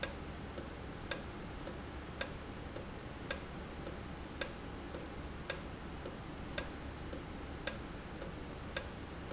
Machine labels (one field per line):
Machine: valve